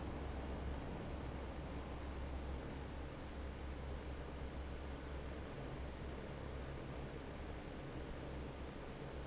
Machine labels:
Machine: fan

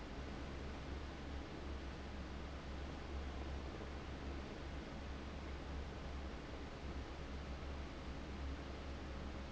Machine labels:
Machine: fan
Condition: abnormal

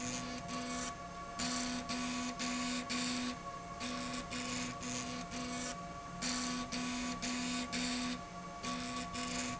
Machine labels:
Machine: slide rail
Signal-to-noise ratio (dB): 0 dB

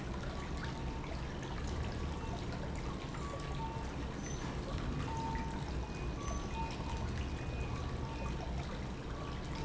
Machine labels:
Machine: pump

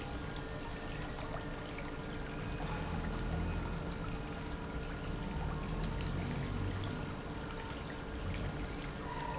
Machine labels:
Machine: pump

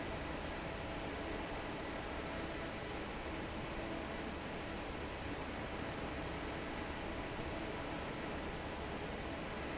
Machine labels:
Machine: fan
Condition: normal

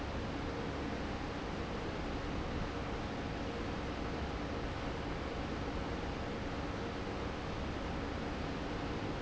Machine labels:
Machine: fan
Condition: normal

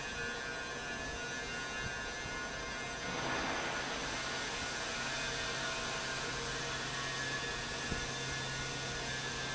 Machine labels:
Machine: fan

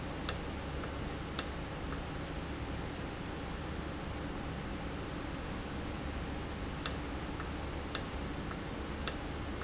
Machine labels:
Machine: valve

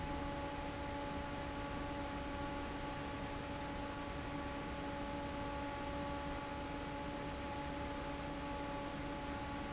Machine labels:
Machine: fan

